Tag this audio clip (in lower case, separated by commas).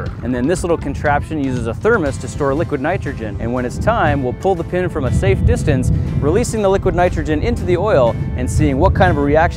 music, speech